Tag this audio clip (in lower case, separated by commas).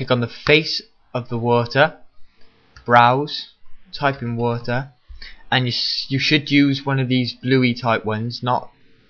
speech